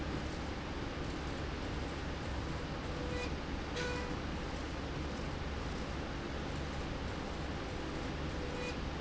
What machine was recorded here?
slide rail